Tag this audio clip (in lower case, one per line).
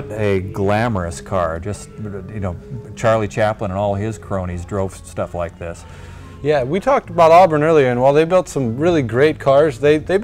speech